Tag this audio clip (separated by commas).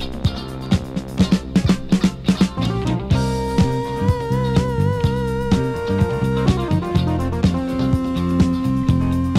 Music